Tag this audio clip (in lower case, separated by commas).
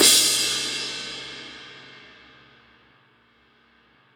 percussion, crash cymbal, cymbal, music, musical instrument